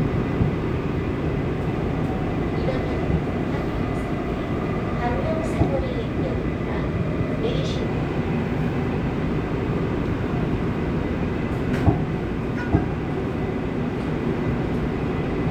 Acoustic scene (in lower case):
subway train